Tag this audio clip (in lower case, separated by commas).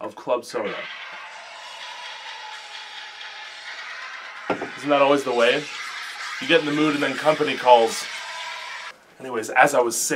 speech